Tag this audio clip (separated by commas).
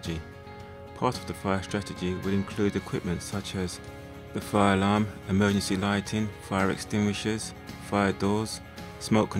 Speech, Music